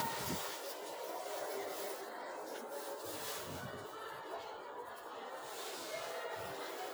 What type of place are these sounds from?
residential area